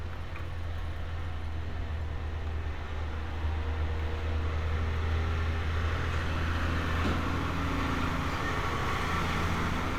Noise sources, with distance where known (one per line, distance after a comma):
engine of unclear size